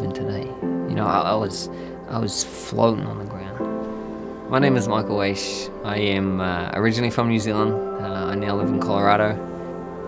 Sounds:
speech
music

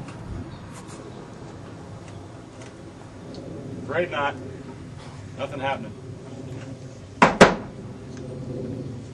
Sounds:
speech

